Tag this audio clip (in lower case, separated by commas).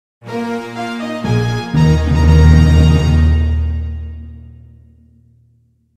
music